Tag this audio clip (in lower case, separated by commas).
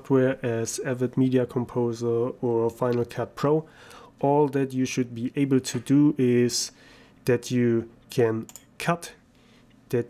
speech